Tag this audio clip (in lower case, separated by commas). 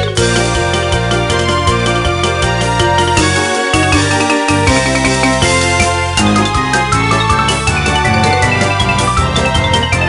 video game music, music